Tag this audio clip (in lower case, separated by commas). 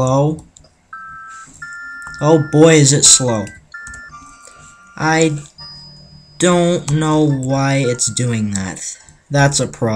speech, music, inside a small room